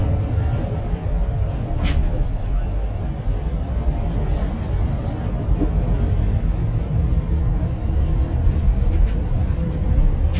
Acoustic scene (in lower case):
bus